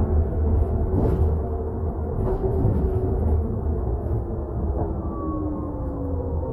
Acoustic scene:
bus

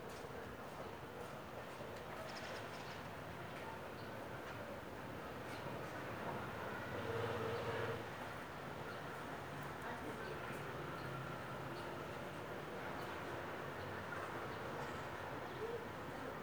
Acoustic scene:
residential area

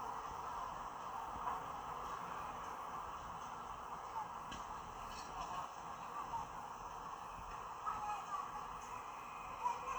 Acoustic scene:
park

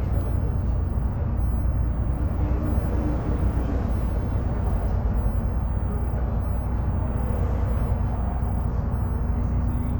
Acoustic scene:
bus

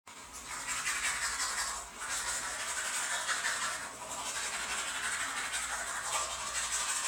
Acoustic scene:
restroom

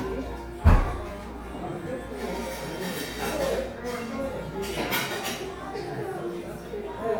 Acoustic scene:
cafe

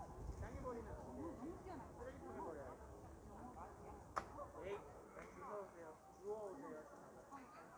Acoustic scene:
park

